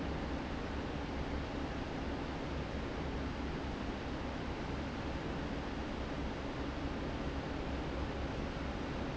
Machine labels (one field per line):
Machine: fan